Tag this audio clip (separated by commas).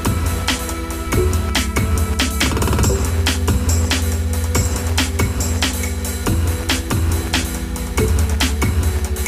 Drum and bass, Music